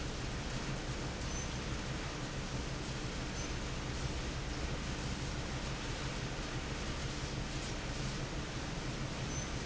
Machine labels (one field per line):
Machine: fan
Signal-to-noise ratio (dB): -6 dB